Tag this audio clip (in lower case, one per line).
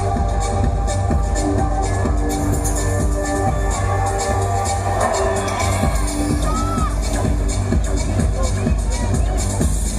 electronic music
music